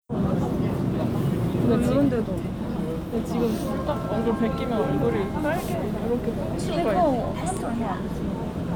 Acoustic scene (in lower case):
subway train